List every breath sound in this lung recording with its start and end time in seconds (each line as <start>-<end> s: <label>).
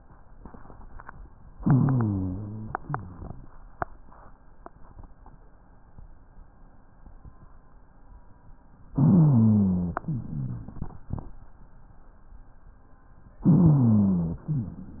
1.57-2.73 s: inhalation
1.57-2.73 s: rhonchi
2.79-3.36 s: exhalation
2.79-3.36 s: rhonchi
8.97-10.02 s: inhalation
8.97-10.02 s: rhonchi
10.09-11.01 s: exhalation
10.09-11.01 s: rhonchi
13.38-14.42 s: inhalation
13.38-14.42 s: rhonchi
14.46-15.00 s: exhalation
14.46-15.00 s: rhonchi